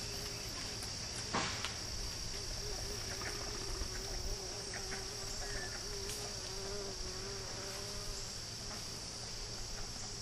Insects buzz while something bangs